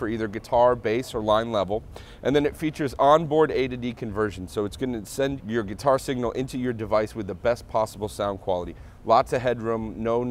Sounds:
speech

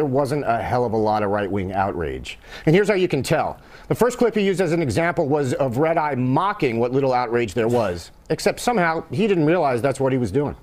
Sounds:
speech

